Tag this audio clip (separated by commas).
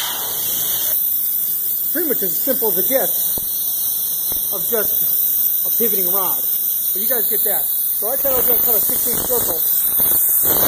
Speech